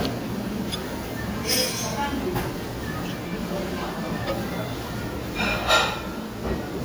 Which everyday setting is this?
restaurant